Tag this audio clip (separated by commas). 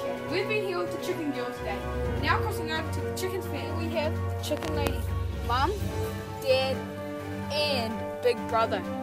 Music, Speech